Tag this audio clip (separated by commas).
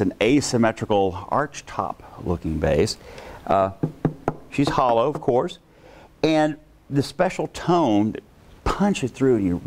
Speech